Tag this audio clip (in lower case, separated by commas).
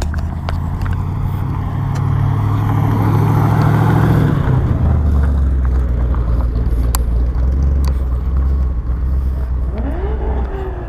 motor vehicle (road), car, vehicle